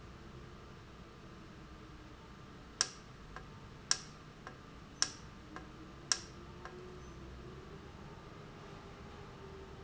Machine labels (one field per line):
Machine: valve